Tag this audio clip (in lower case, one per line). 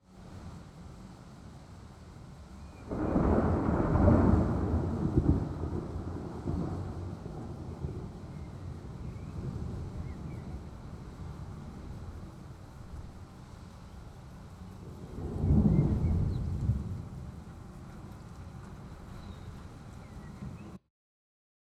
thunder
rain
thunderstorm
water